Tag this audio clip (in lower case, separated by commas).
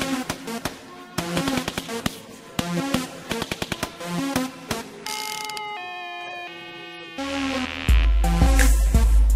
speech, music